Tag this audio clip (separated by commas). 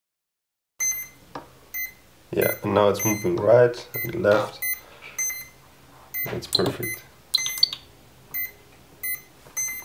Speech, inside a small room